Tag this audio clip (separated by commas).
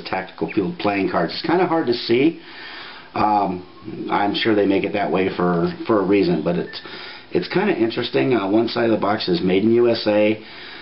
Speech